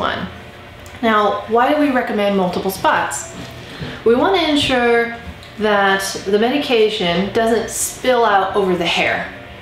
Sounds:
speech

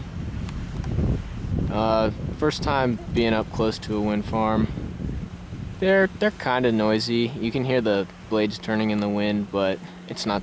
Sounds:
wind noise (microphone), wind

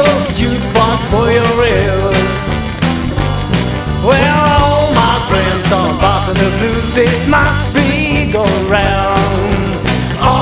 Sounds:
music, blues

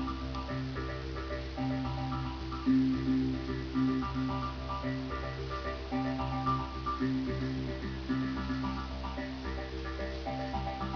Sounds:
music

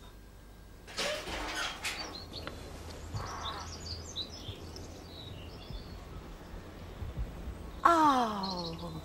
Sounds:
outside, rural or natural, speech, pets, bird

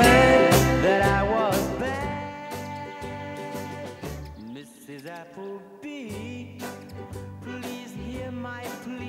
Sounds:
music, male singing

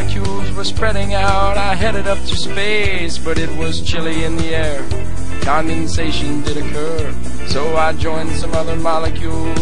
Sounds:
music

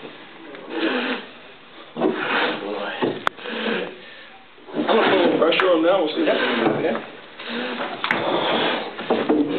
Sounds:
dog, speech, animal, pets

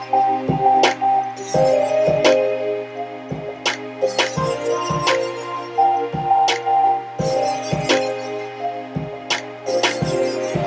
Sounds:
music

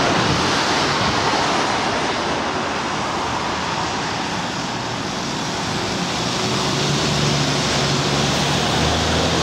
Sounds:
vehicle, driving buses, bus

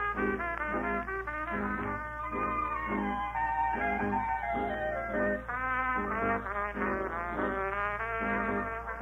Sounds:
playing trumpet

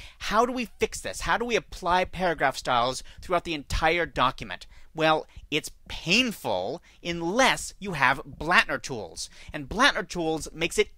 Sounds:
speech

